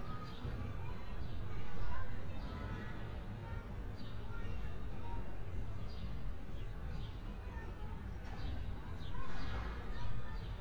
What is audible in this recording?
unidentified human voice